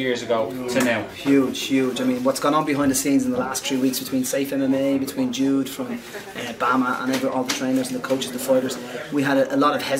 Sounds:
speech

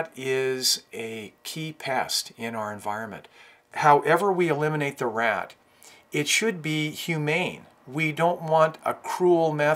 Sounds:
speech

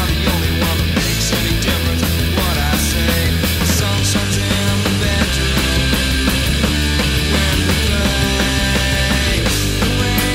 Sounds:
punk rock
music

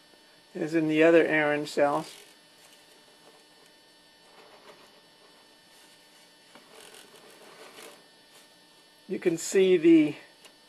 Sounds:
speech

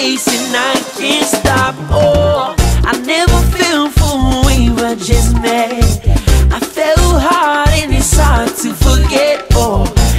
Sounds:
music
music of africa

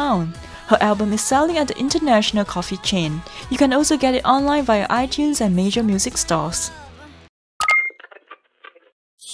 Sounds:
music
speech

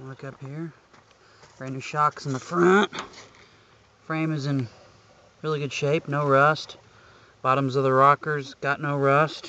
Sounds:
speech

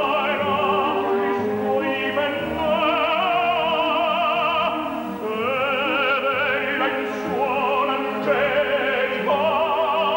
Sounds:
music
orchestra
opera
classical music

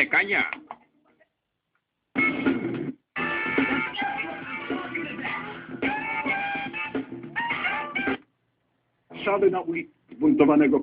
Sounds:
radio
music
speech

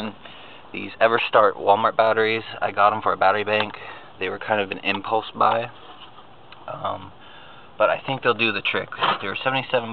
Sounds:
outside, urban or man-made
speech

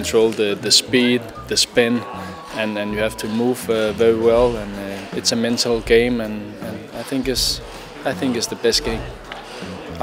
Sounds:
speech
music

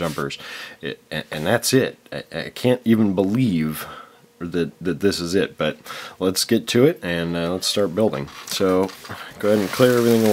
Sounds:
speech

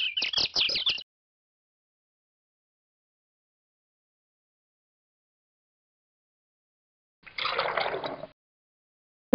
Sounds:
bird call
chirp
bird

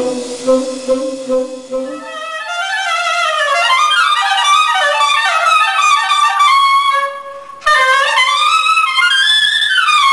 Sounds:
saxophone
musical instrument
music
woodwind instrument

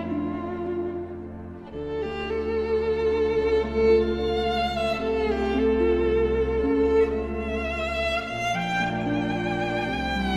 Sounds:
music
bowed string instrument

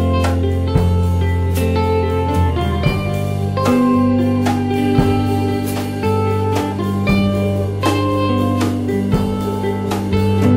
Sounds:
steel guitar
music

